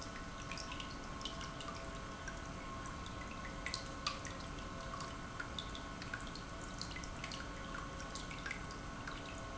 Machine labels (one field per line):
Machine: pump